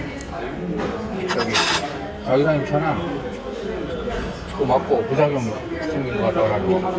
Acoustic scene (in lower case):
restaurant